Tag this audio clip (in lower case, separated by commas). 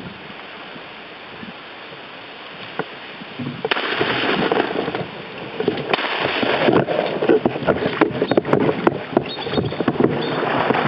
vehicle, boat